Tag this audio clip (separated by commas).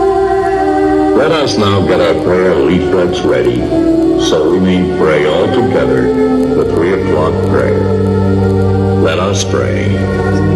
Speech, Music